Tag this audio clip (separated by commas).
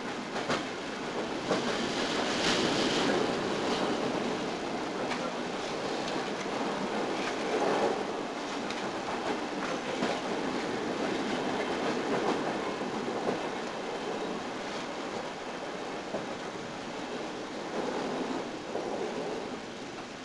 Vehicle, Train, Rail transport